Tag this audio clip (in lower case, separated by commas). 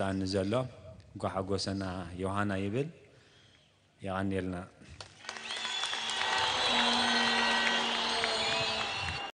monologue, man speaking, speech